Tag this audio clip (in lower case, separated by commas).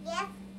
kid speaking, speech, human voice